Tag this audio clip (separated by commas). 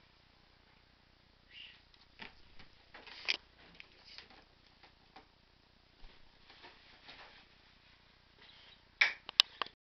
Bird